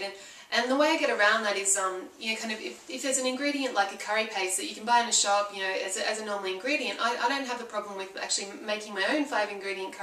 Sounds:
speech

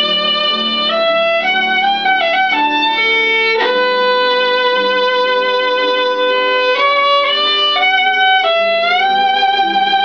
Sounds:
violin
musical instrument
music

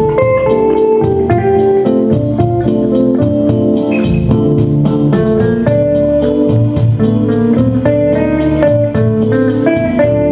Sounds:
guitar
inside a small room
musical instrument
music
plucked string instrument

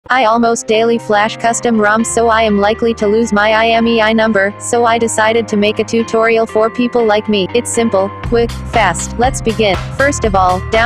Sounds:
speech synthesizer

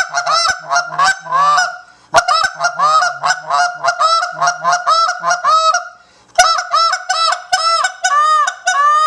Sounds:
fowl
honk
goose

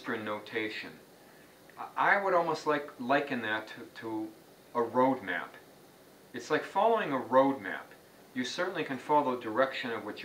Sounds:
speech

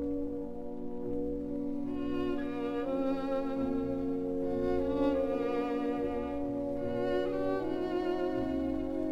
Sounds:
fiddle
musical instrument
music

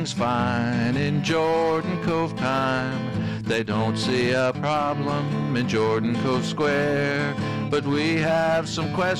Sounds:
music

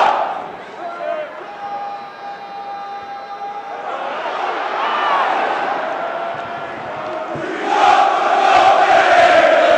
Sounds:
speech

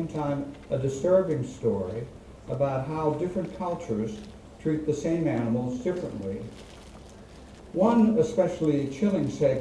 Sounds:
speech
monologue
male speech

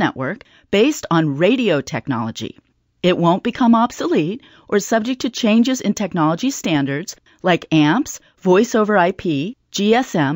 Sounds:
speech

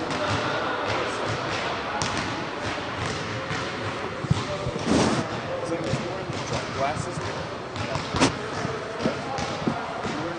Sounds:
speech
dribble

